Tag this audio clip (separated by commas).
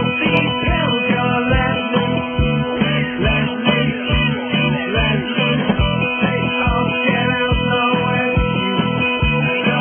Music